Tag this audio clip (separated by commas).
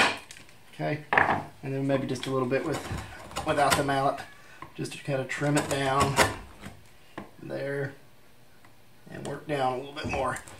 Rub, Wood, Filing (rasp)